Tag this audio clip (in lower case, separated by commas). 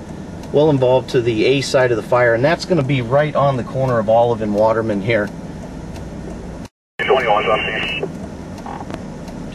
speech